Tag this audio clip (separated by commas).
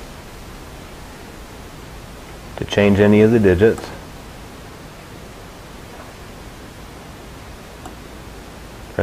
Speech